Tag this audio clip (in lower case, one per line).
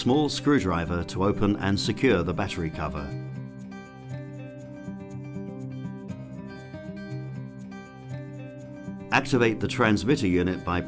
speech
music